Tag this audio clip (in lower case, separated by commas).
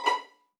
bowed string instrument, musical instrument, music